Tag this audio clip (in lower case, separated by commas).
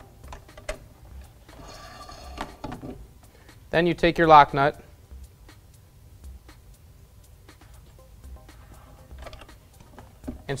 music, speech